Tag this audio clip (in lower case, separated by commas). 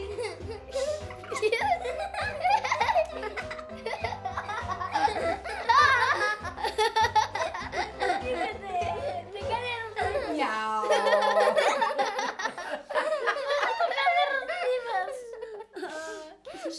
laughter, human voice